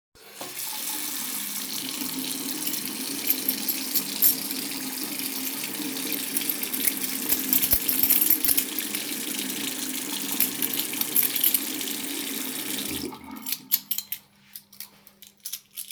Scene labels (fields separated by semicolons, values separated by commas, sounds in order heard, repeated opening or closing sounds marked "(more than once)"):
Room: hallway, kitchen; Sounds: running water, keys